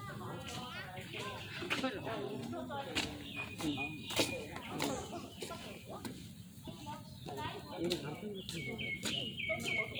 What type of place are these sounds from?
park